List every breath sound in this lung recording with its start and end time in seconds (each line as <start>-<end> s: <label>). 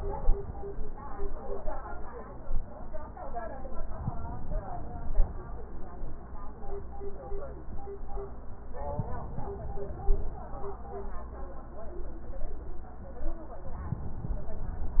3.95-5.45 s: inhalation
8.87-10.37 s: inhalation